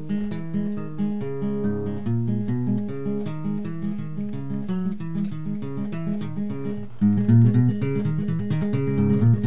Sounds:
plucked string instrument
musical instrument
guitar
music
playing acoustic guitar
acoustic guitar

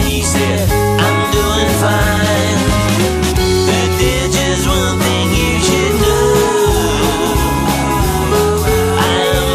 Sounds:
music
happy music

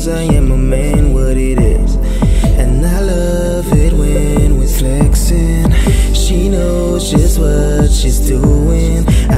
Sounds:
music

